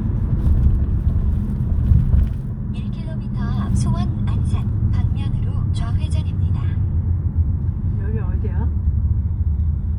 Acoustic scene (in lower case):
car